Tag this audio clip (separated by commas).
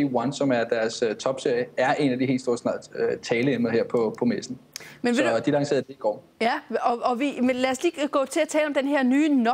Speech